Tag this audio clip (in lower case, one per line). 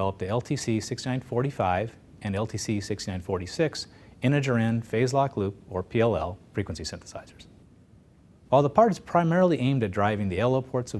speech